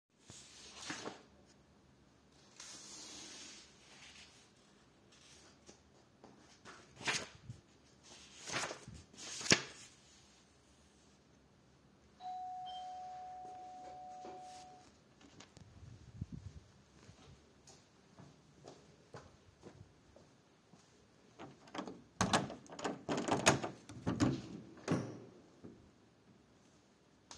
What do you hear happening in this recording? I am reading a book when the doorbell rang. I proceded to walk there quietly (steps still audible) and opened the front door.